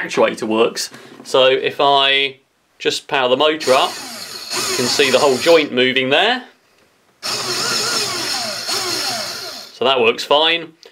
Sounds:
inside a small room, Speech

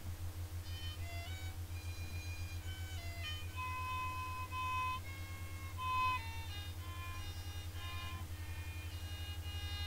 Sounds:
Musical instrument, Music, fiddle

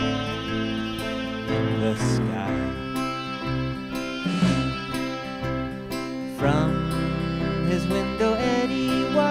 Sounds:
Music

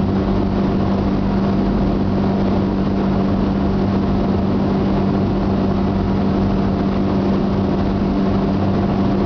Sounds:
Wind noise (microphone)

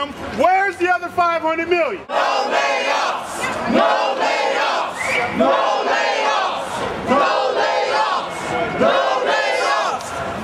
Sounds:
Speech, outside, urban or man-made

